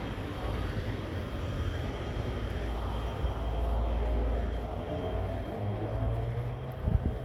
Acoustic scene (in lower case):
residential area